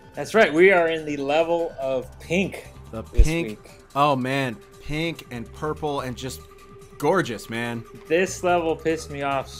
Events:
0.0s-9.5s: music
0.0s-9.5s: video game sound
0.1s-2.0s: male speech
0.2s-9.5s: conversation
2.2s-2.7s: male speech
2.9s-3.6s: male speech
3.6s-3.8s: breathing
3.9s-4.5s: male speech
4.8s-5.4s: male speech
5.5s-6.4s: male speech
7.0s-7.8s: male speech
8.0s-8.7s: male speech
8.8s-9.5s: male speech

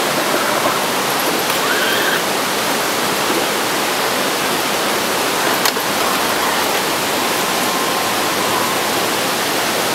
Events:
0.0s-9.9s: waterfall

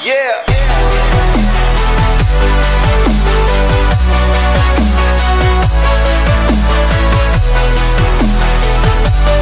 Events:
0.0s-0.8s: human voice
0.5s-9.4s: music

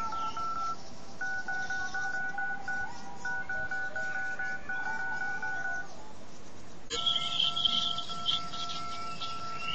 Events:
0.0s-0.6s: human voice
0.0s-0.7s: telephone dialing
0.0s-2.2s: whir
0.0s-9.7s: mechanisms
1.1s-2.5s: telephone dialing
1.5s-2.1s: human voice
1.8s-2.0s: tweet
2.5s-3.4s: whir
2.6s-2.8s: telephone dialing
2.6s-5.9s: human voice
3.2s-5.8s: telephone dialing
3.6s-4.5s: whir
4.7s-6.0s: whir
6.2s-6.7s: whir
6.8s-9.3s: whir
6.9s-9.7s: telephone dialing
8.7s-9.3s: tweet
9.5s-9.7s: tweet

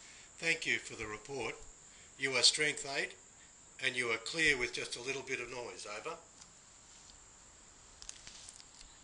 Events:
0.0s-0.4s: breathing
0.0s-9.0s: background noise
0.4s-1.6s: male speech
1.9s-2.2s: breathing
2.2s-3.1s: male speech
3.3s-3.7s: breathing
3.8s-6.2s: male speech
6.4s-6.6s: generic impact sounds
6.9s-7.2s: generic impact sounds
8.0s-8.9s: generic impact sounds

